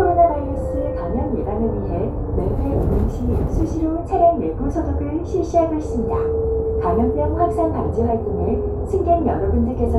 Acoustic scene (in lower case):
bus